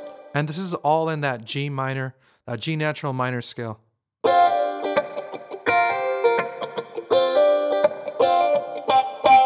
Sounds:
Speech, inside a small room, Keyboard (musical), Music, Synthesizer, Musical instrument

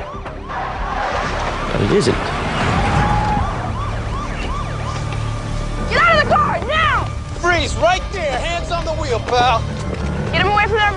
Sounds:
Siren, Speech, Vehicle, Police car (siren)

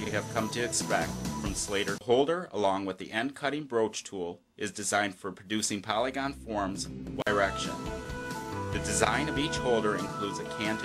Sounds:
Speech, Music

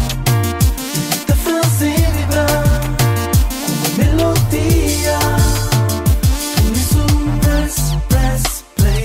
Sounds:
Music, Music of Africa

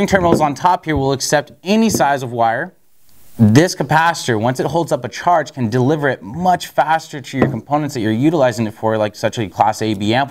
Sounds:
Speech

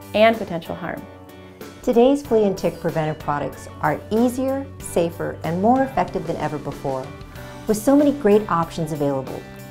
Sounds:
Speech, Music

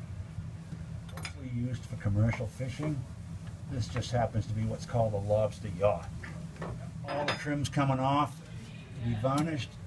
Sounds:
Speech

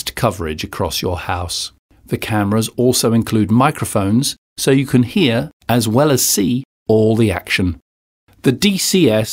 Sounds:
Speech

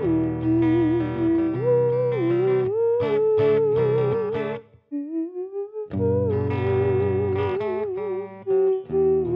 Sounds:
playing theremin

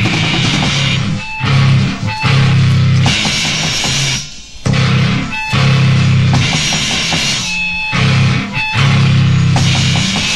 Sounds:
Music

